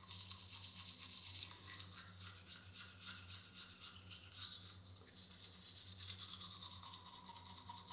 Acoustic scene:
restroom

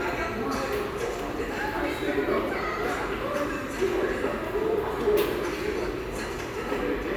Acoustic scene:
subway station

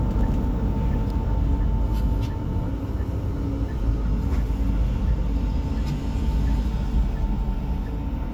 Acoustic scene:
bus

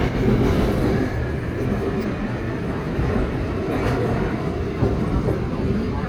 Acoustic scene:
subway train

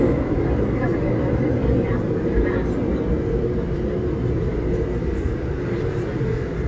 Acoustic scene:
subway train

